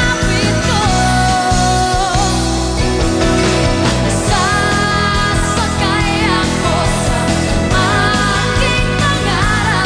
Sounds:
dance music, music

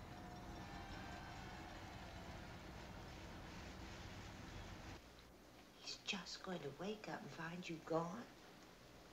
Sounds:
speech

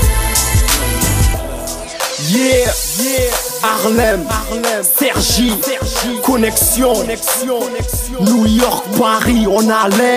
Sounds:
music, hip hop music

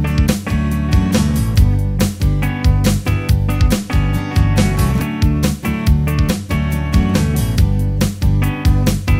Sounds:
music

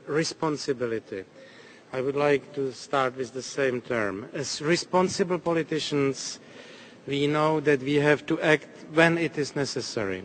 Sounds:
speech, narration, man speaking

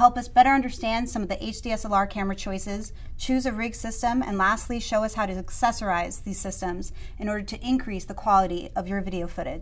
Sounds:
speech

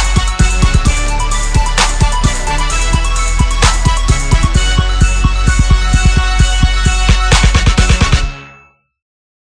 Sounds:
music, hip hop music

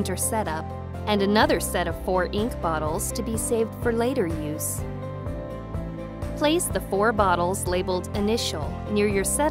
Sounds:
speech, music

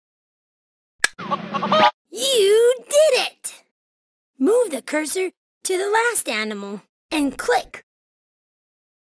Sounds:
speech

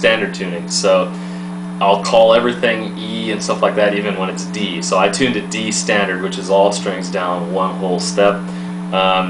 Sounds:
speech

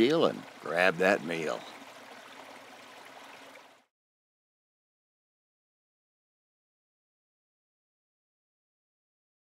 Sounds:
speech, stream

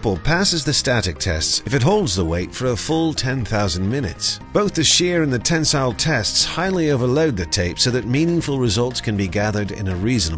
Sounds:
music, speech

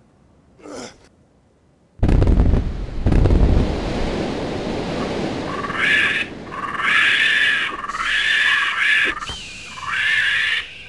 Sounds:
outside, rural or natural

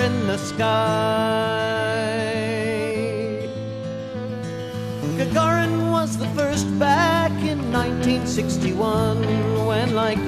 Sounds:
music

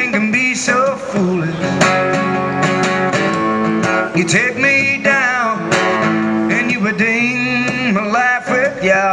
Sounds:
guitar, plucked string instrument, strum, musical instrument, music, acoustic guitar

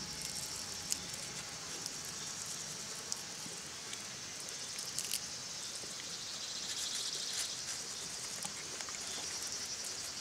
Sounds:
insect, animal

